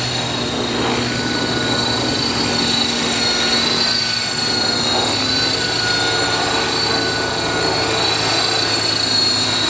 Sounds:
outside, urban or man-made, Helicopter

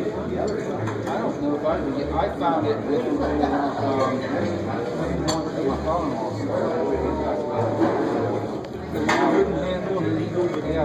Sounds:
Speech

